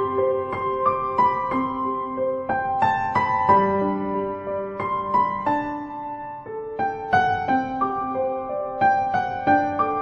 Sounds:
music

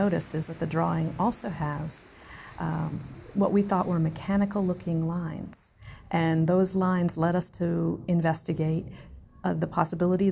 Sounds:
speech

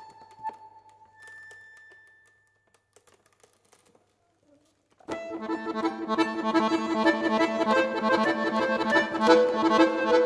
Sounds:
musical instrument
accordion
music

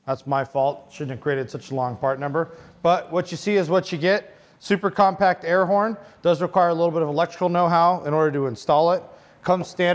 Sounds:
speech

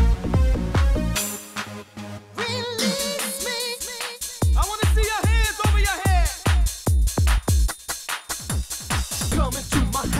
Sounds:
music
electronic music
techno

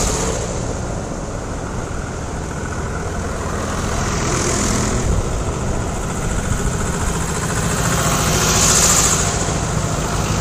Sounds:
vehicle

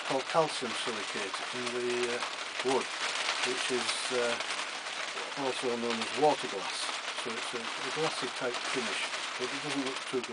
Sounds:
speech

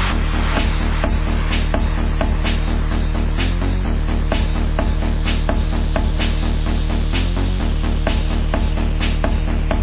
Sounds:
exciting music
music

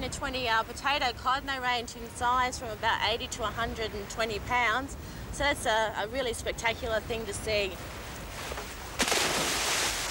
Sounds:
speech

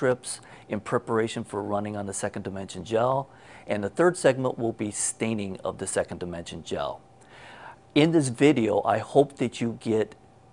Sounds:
speech

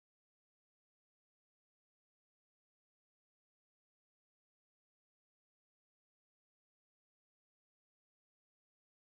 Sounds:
music
drum machine

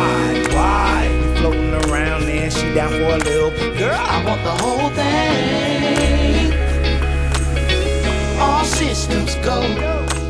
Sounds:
music
gospel music

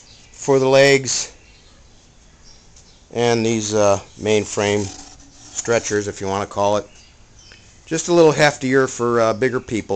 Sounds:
speech

